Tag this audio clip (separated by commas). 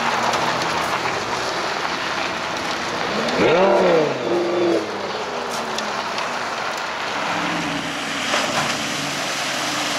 Field recording, auto racing, Car, Vehicle